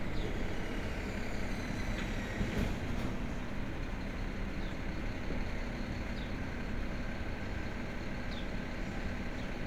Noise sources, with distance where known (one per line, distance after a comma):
large-sounding engine